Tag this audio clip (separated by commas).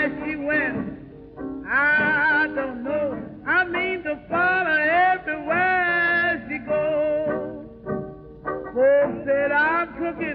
Jazz, Music